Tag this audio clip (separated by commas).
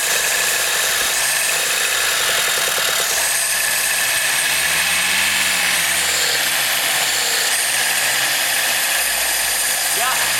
Speech